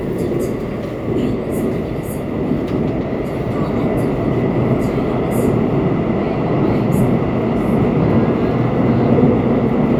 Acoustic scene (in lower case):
subway train